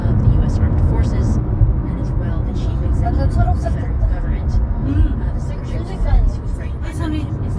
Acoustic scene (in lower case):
car